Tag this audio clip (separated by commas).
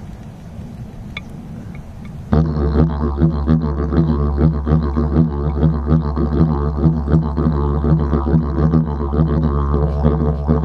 Music, Didgeridoo